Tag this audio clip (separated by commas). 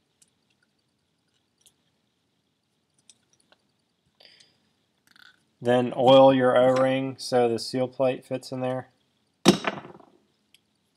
inside a small room, Speech